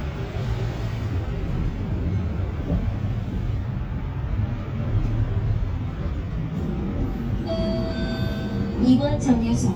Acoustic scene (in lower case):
bus